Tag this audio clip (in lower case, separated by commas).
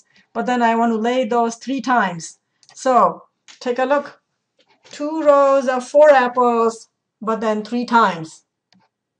clicking